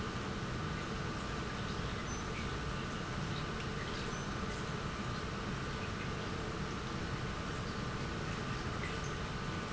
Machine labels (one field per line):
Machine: pump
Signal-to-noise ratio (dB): -6 dB